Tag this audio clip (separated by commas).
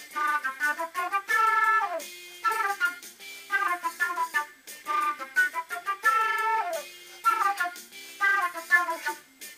Music, Flute